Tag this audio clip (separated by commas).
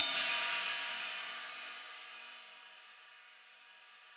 Hi-hat, Musical instrument, Cymbal, Percussion, Music